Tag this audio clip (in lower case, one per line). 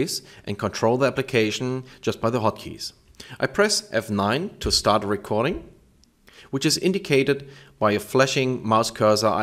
speech